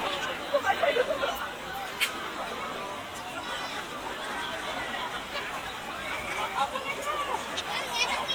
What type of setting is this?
park